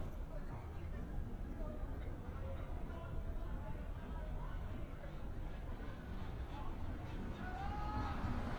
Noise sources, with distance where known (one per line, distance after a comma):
engine of unclear size
person or small group shouting, far